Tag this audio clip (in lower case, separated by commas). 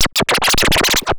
music, musical instrument, scratching (performance technique)